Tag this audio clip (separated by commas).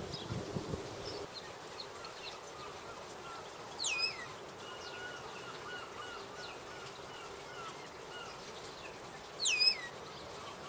Bird, bird chirping, bird song, Chirp